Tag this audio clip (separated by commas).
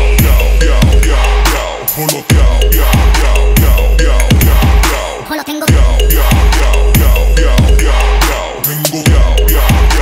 Music